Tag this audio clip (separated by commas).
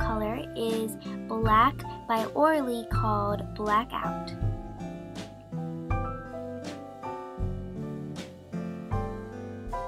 Music, Speech